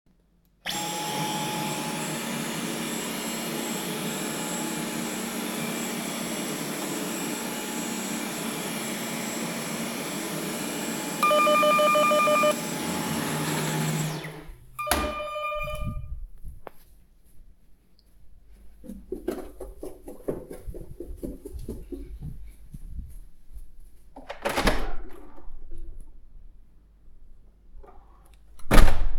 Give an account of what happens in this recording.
I vacuumed when the doorbell rings. I stop vacuuming, go to the door and open and close the door.